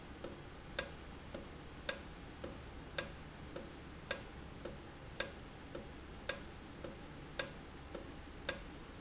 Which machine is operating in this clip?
valve